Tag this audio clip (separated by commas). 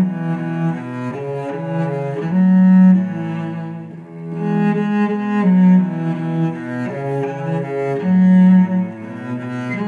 Cello, Music, Musical instrument